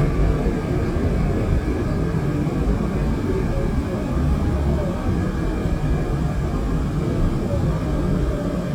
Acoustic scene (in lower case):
subway train